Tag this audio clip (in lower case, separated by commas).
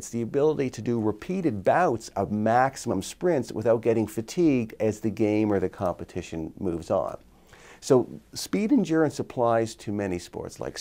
speech